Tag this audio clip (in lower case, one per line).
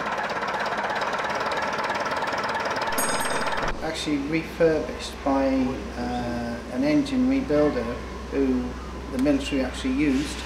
speech
engine
heavy engine (low frequency)